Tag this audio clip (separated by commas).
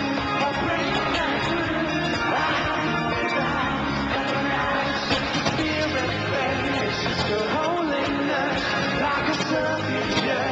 Music, Singing